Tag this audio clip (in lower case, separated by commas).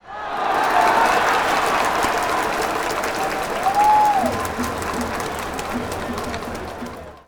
crowd, human group actions